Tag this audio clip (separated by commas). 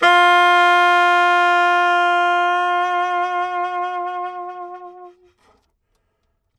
Musical instrument, Music, woodwind instrument